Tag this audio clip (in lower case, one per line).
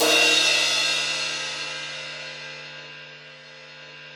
musical instrument
crash cymbal
percussion
cymbal
music